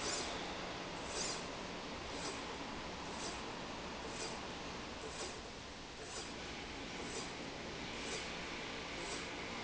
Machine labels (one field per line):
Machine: slide rail